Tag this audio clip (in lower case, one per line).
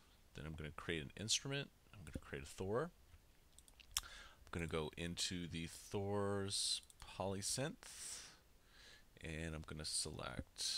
speech